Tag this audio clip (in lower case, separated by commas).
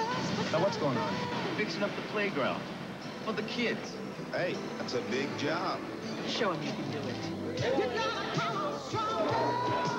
outside, urban or man-made, music, speech